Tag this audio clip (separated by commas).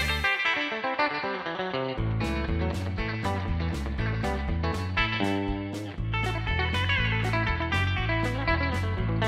Music, Musical instrument, Plucked string instrument, Guitar